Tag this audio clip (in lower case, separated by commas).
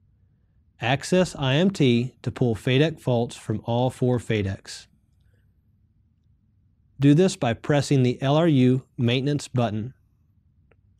speech